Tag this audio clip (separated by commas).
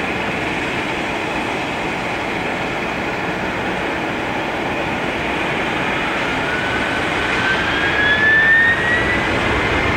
airplane, Aircraft, Vehicle